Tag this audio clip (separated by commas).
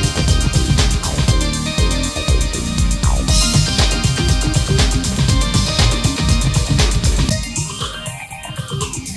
Music, Video game music, Soundtrack music